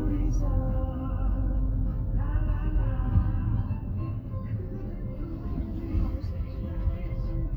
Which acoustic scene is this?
car